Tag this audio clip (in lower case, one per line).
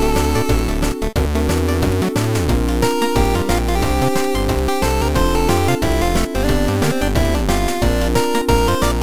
music